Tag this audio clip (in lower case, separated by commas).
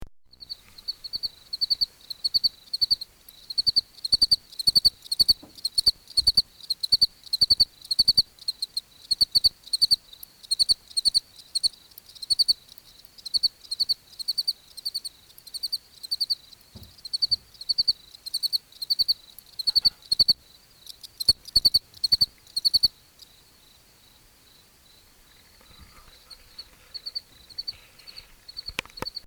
animal, insect, cricket, wild animals